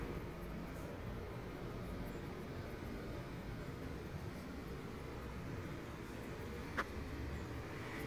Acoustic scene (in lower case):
residential area